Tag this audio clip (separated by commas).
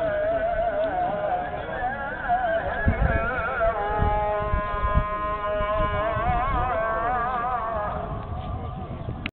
Speech